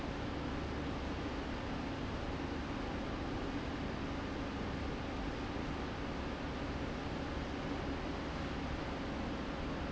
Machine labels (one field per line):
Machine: fan